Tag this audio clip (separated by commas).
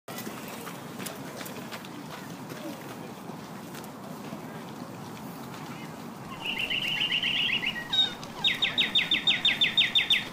Speech, Walk